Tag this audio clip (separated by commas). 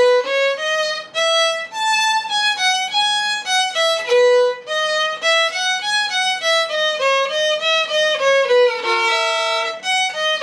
Music, Musical instrument, fiddle